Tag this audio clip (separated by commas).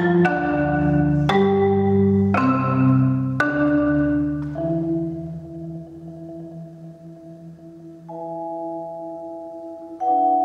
Vibraphone, Music, xylophone